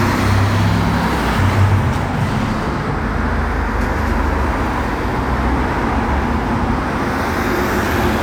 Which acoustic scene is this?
street